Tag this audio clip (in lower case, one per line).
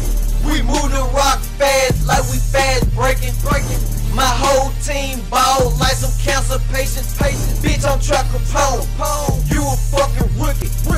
music